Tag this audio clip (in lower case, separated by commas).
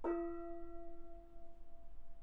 music, gong, percussion, musical instrument